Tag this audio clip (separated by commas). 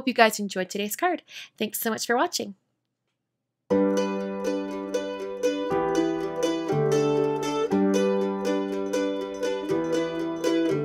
Mandolin